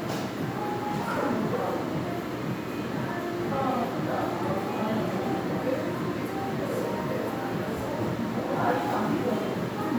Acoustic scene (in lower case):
crowded indoor space